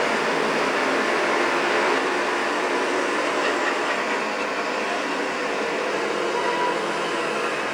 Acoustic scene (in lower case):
street